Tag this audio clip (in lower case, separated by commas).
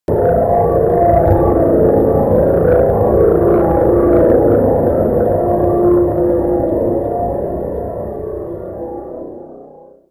music, musical instrument